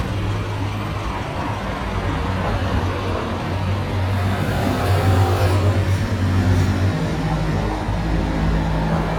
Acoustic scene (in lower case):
street